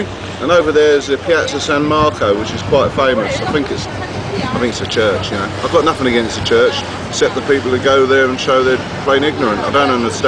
Motor running in background as man talking, with faint conversation noise in background